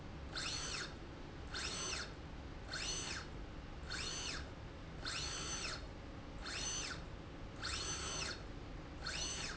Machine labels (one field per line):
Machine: slide rail